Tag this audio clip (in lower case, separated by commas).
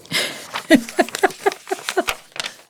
giggle, laughter, human voice